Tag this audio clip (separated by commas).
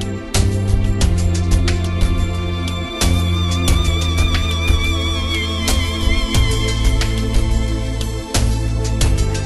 Soul music, Music